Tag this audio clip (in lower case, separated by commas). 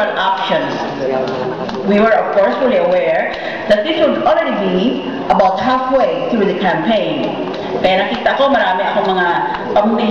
narration, speech, woman speaking